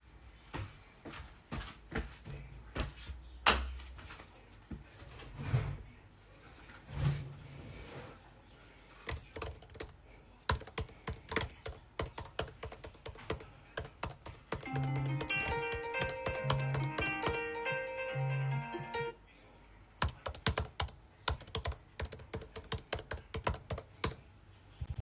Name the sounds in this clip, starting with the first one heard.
footsteps, light switch, wardrobe or drawer, keyboard typing, phone ringing